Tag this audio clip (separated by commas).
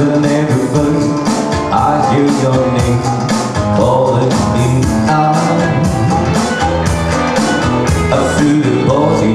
Singing, Music